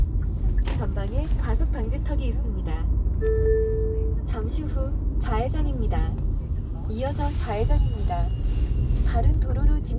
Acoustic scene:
car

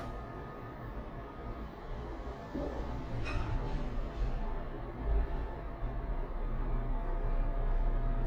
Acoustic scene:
elevator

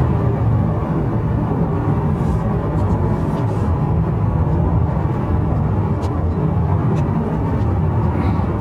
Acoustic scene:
car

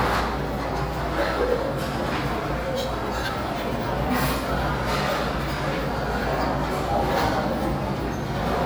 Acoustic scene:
restaurant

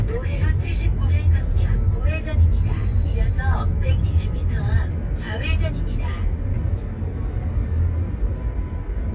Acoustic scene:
car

